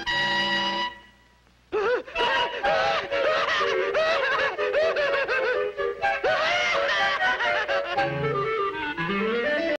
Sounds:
music

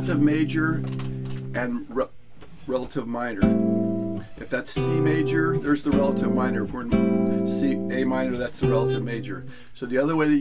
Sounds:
guitar
music
speech
plucked string instrument
strum
musical instrument

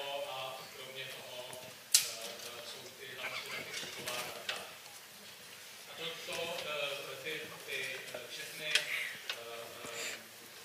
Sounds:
speech

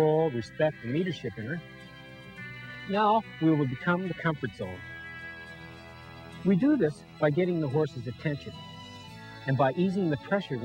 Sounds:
music
speech

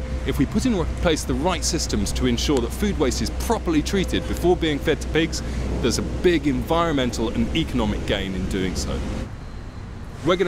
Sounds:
speech
music

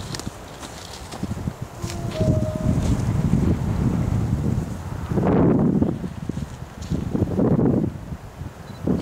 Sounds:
vehicle
rail transport

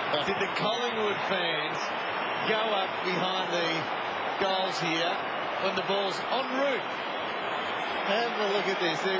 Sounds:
speech

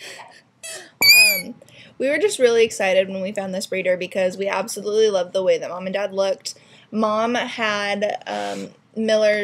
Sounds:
speech

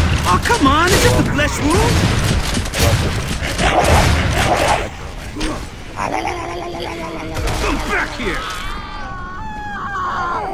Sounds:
speech

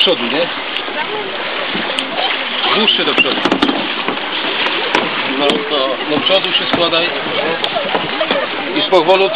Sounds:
kayak
speech
vehicle

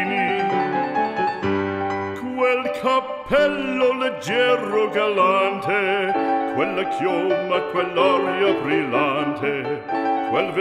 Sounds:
music

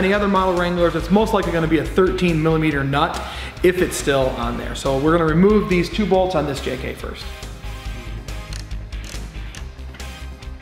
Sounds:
speech
music

